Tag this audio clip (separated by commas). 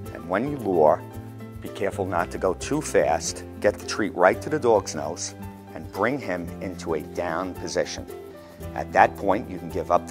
Speech, Music